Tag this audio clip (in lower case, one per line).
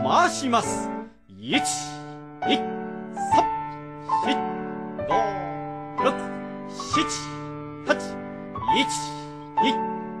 speech
music